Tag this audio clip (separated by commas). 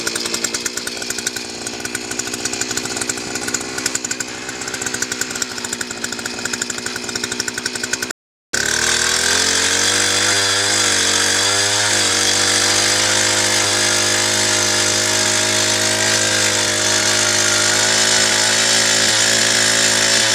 Engine